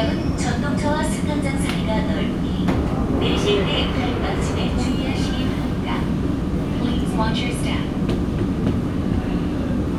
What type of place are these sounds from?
subway train